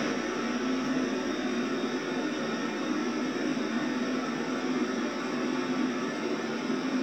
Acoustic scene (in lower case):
subway train